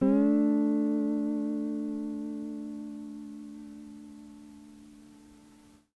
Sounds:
musical instrument
plucked string instrument
guitar
music

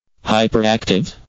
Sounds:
human voice
speech synthesizer
speech

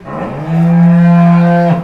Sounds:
livestock
animal

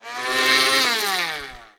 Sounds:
domestic sounds

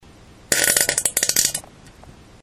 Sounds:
fart

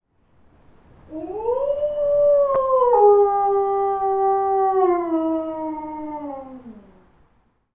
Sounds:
animal
domestic animals
dog

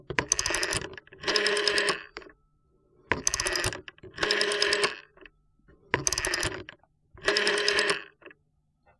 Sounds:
alarm
telephone

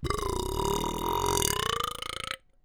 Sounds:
burping

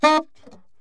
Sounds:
music
musical instrument
woodwind instrument

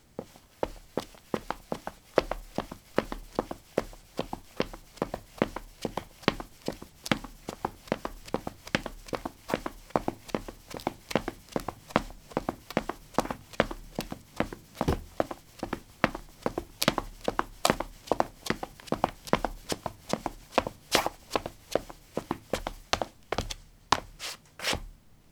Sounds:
run

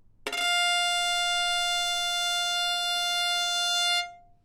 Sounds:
music
bowed string instrument
musical instrument

